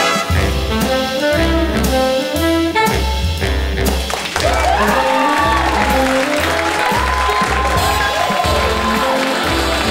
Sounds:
music

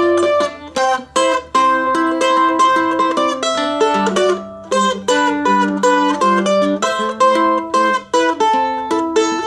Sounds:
playing mandolin

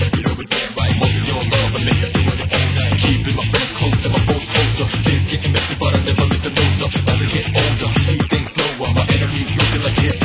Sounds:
music
video game music

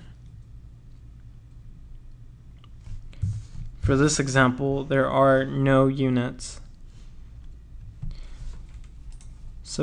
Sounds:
speech

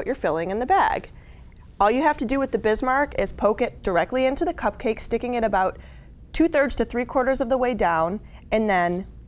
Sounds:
speech

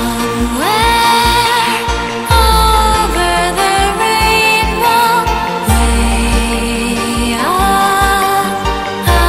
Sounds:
music

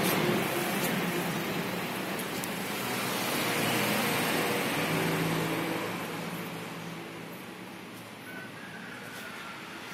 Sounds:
reversing beeps

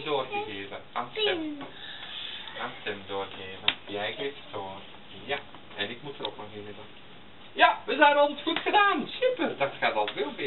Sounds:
speech
kid speaking

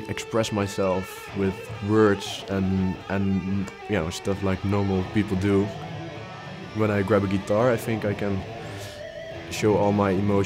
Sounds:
speech
guitar
strum
music
sound effect
plucked string instrument
musical instrument

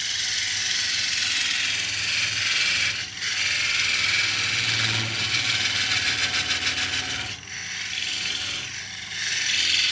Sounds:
pawl
gears
mechanisms

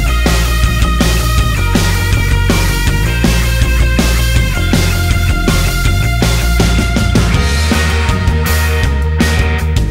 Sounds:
music

